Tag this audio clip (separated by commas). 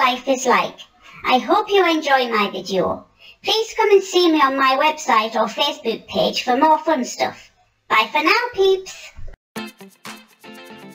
Speech, Music